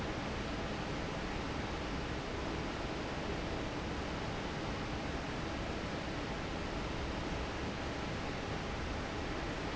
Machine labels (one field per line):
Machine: fan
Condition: normal